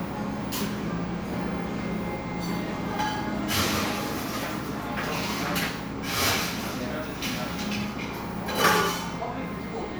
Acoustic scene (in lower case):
cafe